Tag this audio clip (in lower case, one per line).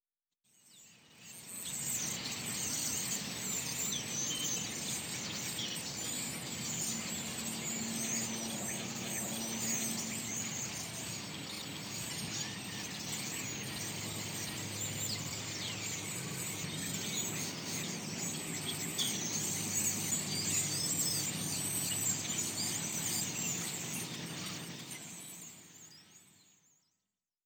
animal
bird call
bird
wild animals